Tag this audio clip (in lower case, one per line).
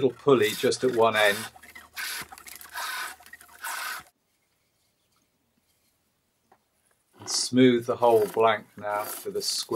wood
speech